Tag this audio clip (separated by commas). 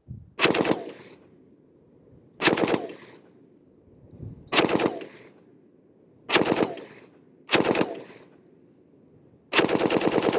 machine gun shooting